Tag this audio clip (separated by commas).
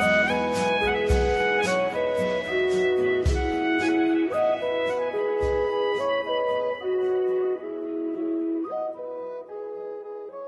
Music